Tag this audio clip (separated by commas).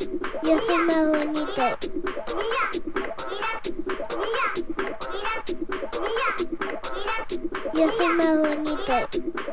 Speech, Music